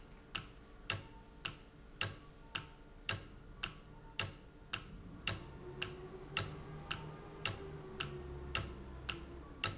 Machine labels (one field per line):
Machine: valve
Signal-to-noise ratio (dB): 6 dB